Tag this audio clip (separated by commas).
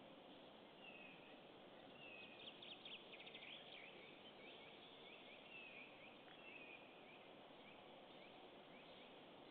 Animal